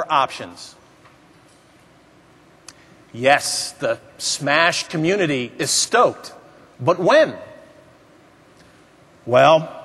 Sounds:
Speech

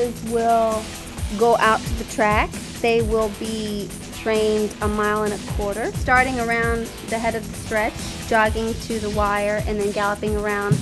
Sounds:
Speech, Music

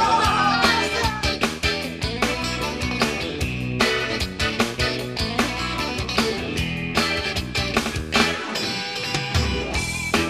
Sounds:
Speech, Music

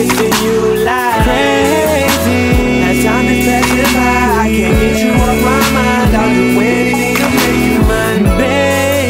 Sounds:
Music

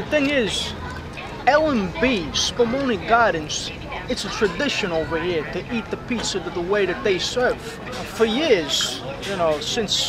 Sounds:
Speech

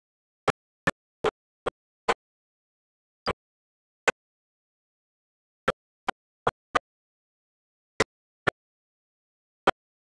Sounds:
Engine

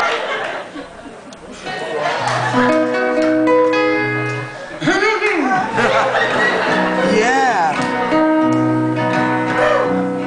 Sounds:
Music, Speech

